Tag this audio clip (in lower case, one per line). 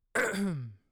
cough
respiratory sounds